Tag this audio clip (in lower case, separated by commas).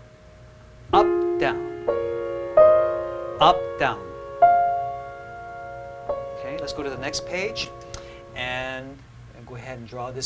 musical instrument, keyboard (musical), piano